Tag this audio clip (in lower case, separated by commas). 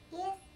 speech, human voice, kid speaking